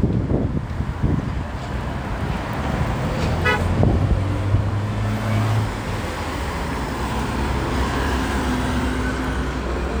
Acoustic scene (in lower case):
street